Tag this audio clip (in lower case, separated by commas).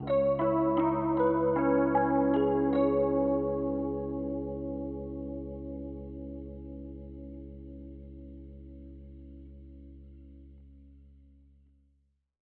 piano, keyboard (musical), musical instrument, music